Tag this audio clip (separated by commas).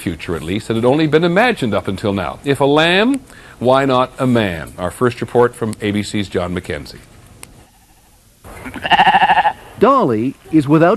Bleat, Speech